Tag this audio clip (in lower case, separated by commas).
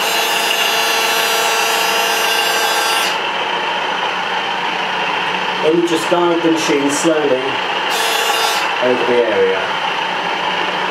vacuum cleaner cleaning floors